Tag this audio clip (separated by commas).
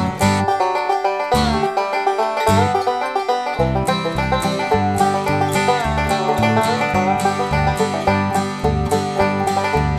Music